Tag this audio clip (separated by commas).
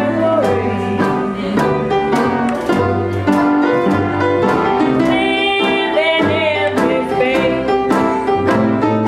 Music